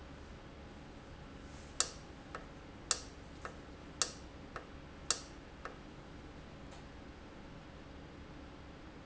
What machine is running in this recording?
valve